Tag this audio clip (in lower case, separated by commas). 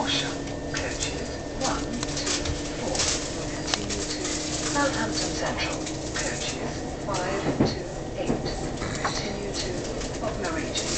train, speech, rail transport, vehicle, train wagon